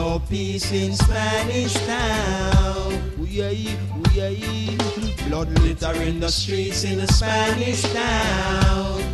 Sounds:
Reggae, Music

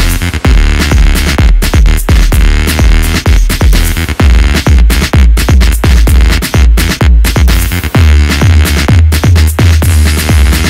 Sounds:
House music, Music

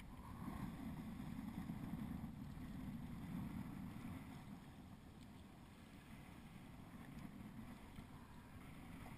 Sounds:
Vehicle, canoe, Boat

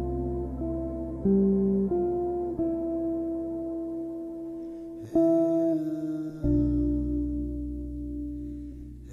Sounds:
Soundtrack music, Music

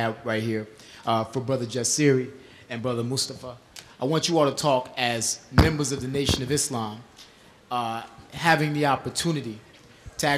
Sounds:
Speech

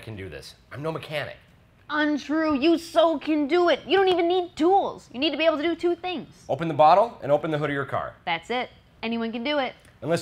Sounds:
Speech

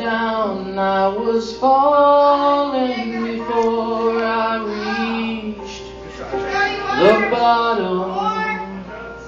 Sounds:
Speech, Music

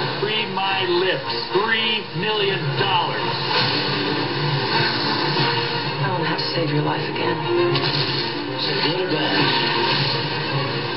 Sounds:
Television

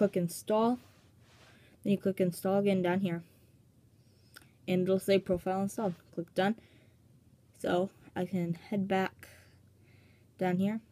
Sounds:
Speech

